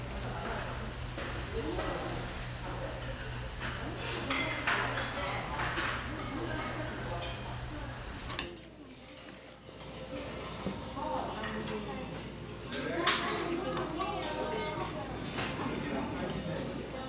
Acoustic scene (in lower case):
restaurant